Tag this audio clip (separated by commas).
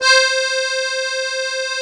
Accordion, Music, Musical instrument